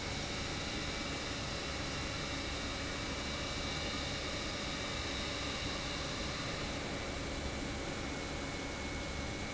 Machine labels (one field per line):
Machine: pump